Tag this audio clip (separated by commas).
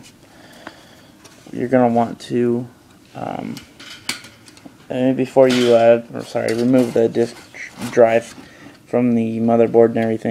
inside a small room, Speech